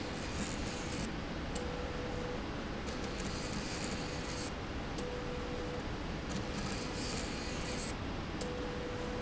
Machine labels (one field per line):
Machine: slide rail